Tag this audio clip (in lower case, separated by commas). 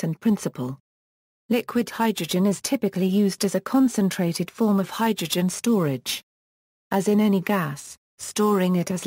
speech